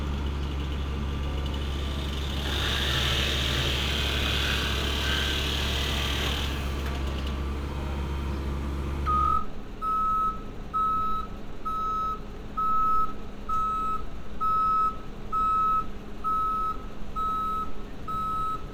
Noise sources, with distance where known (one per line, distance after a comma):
reverse beeper, near